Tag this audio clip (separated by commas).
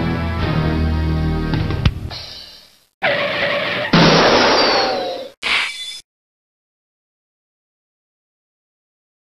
Sound effect